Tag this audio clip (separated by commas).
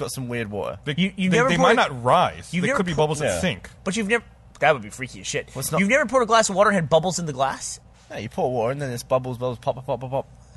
Speech